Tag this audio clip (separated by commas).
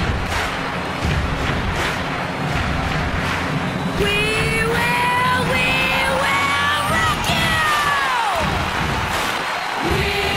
Music